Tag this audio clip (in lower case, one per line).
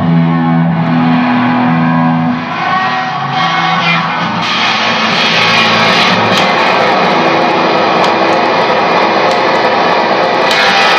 music